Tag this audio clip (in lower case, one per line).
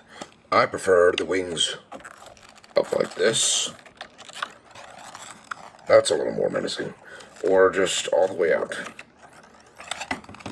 speech